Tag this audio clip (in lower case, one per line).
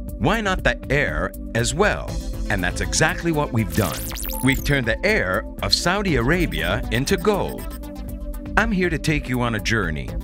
music
television
speech